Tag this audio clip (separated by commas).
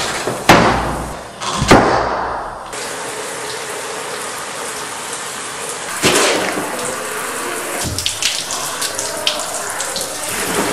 faucet, Water